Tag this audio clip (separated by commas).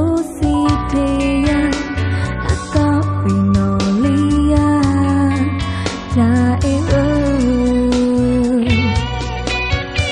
Music